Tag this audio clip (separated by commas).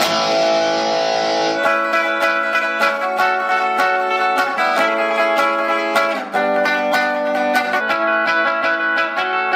Electric guitar, Music, Guitar, Musical instrument, Plucked string instrument